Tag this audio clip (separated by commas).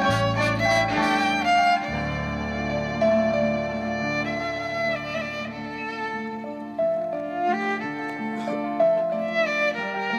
Music, fiddle, Musical instrument, Pizzicato